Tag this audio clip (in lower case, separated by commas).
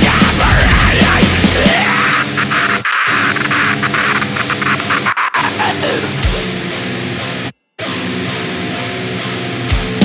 angry music, music